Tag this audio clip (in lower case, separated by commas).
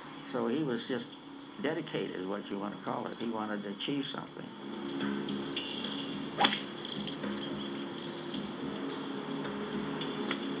outside, rural or natural, speech, music